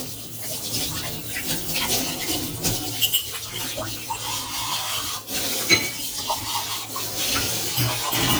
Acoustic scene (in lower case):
kitchen